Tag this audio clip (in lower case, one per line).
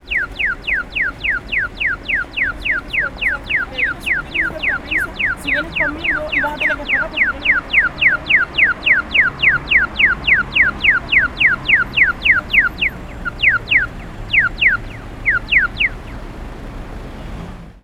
alarm